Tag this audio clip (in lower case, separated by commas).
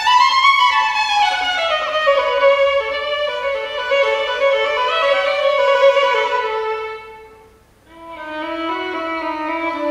music, fiddle, musical instrument, bowed string instrument, classical music, playing violin